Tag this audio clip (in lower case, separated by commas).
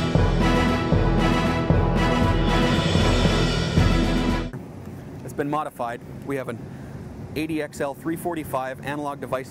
music, speech